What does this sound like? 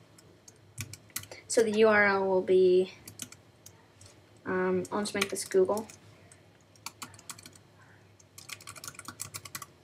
Typing on a keyboard as a woman speaks